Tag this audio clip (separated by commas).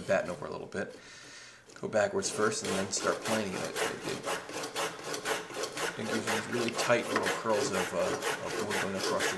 Rub, Wood, Filing (rasp)